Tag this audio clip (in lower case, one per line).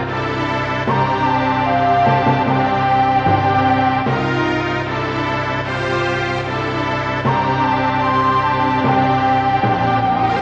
music